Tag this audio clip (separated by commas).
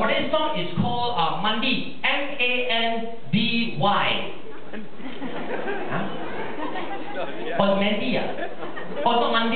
Speech